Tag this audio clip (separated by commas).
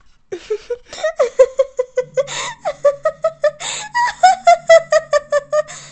Laughter, Human voice